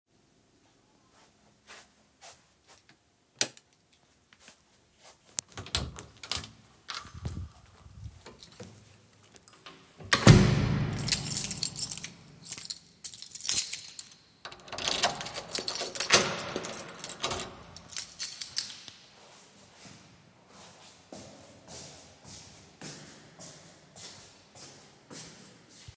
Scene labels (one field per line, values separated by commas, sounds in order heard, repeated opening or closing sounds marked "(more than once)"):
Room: hallway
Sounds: footsteps, light switch, door (more than once), keys